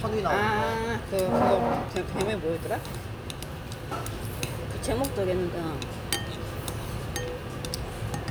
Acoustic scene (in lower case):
restaurant